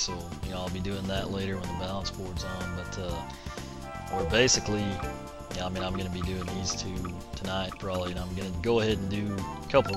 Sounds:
speech
music

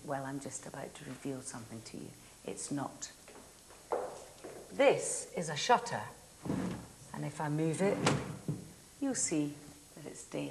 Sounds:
woman speaking

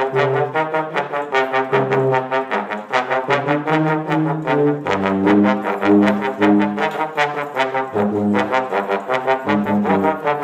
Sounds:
music
brass instrument

